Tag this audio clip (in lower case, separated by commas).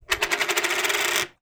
coin (dropping), home sounds